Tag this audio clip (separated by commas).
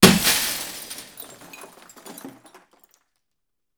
Glass, Shatter